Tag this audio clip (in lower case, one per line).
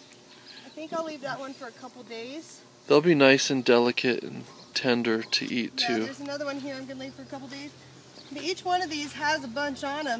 speech